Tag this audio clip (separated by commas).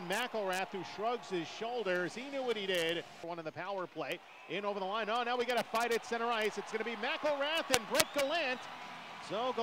Speech